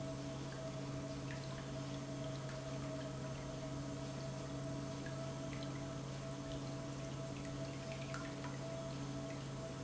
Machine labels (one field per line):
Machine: pump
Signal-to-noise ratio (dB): 0 dB